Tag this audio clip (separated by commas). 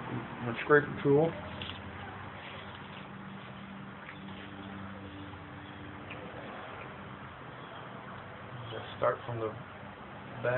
Speech